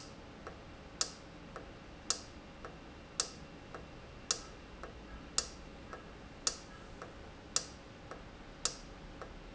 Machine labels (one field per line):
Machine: valve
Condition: normal